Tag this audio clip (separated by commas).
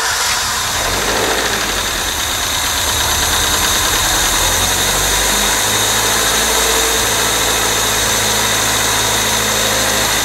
car engine starting